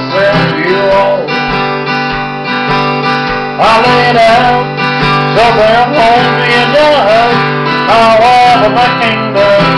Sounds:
acoustic guitar, bass guitar, music, musical instrument, guitar, electric guitar

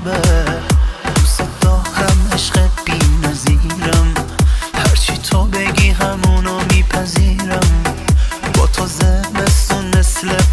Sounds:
rhythm and blues, music

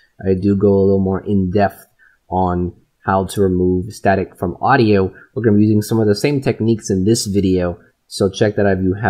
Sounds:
speech

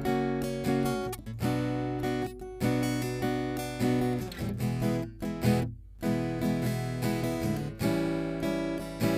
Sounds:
acoustic guitar, plucked string instrument, strum, musical instrument, guitar, music

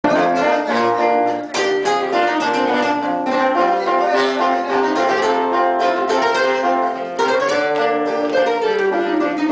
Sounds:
speech, pizzicato, male speech, music

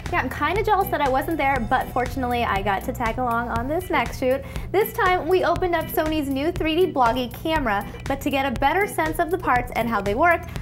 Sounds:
music, speech

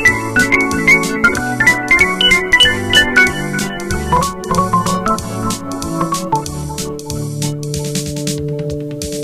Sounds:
musical instrument, electric piano, music

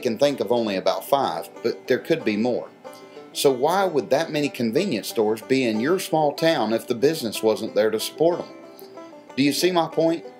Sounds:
speech, music

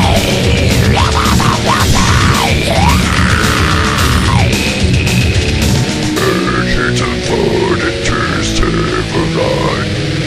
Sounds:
music

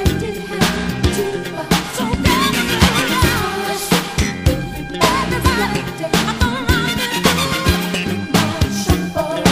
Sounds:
music, funk

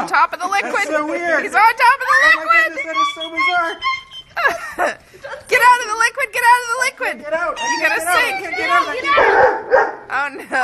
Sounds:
speech, bow-wow, inside a small room

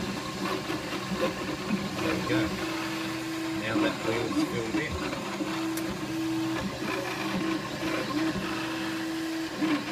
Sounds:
speech

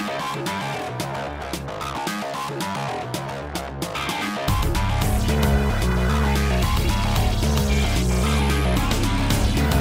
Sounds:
music

